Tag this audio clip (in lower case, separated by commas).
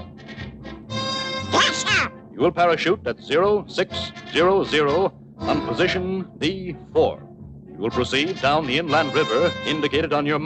speech, music